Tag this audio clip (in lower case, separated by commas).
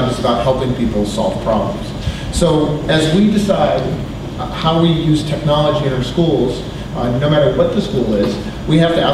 man speaking